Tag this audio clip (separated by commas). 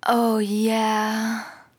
Human voice, woman speaking, Speech